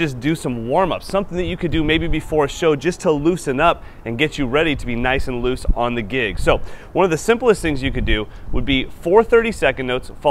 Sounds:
speech

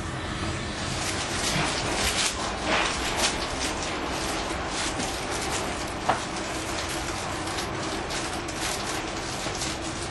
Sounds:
train, train wagon, rail transport, clickety-clack, metro

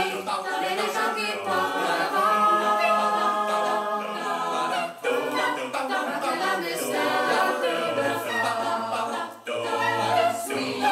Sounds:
a capella, vocal music, singing

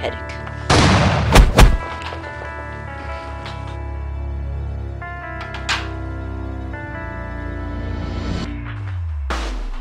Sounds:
speech, music

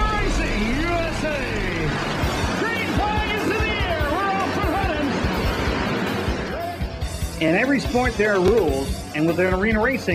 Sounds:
speech, vehicle, race car, car

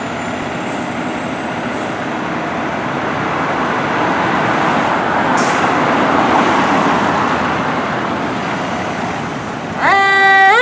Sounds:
fire truck siren

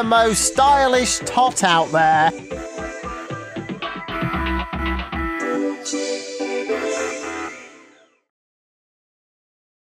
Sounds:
speech, music

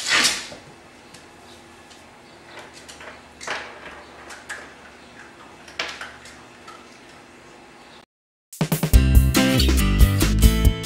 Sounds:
opening or closing drawers

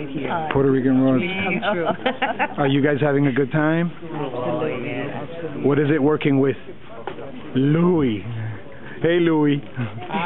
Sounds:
speech

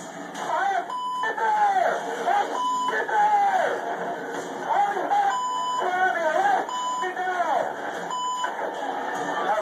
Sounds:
radio, speech

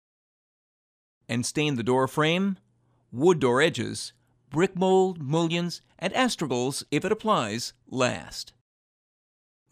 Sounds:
speech

